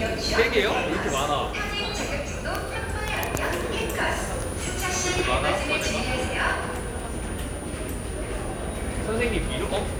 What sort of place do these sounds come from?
subway station